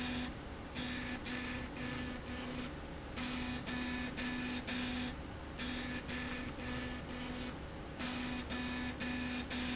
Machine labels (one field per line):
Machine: slide rail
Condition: abnormal